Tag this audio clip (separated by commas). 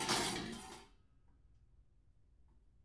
dishes, pots and pans, Domestic sounds